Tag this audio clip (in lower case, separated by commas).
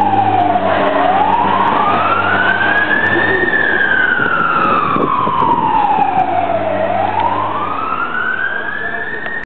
vehicle, truck, speech